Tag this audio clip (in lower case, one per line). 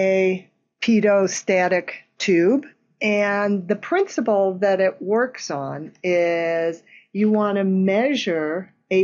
speech